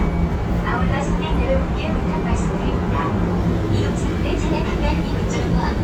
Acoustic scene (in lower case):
subway train